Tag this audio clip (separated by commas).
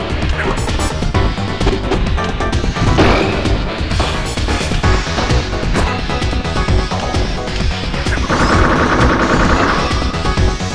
Music